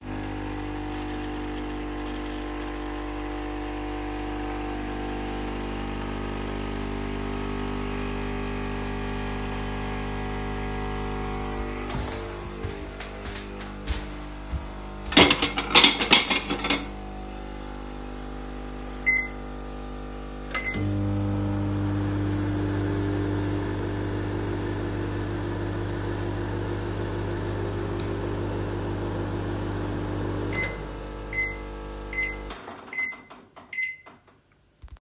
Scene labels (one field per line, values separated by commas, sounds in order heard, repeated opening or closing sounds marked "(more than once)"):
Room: kitchen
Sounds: coffee machine, footsteps, cutlery and dishes, microwave